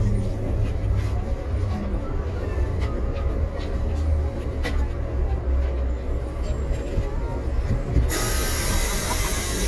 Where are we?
on a bus